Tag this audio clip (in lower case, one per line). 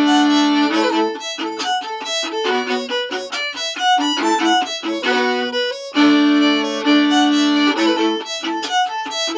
fiddle
music
musical instrument